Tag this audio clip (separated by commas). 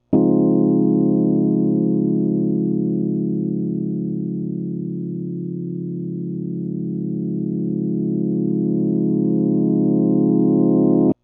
Music, Keyboard (musical), Piano, Musical instrument